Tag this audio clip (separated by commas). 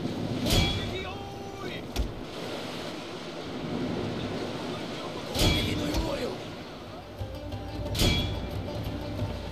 Music, Speech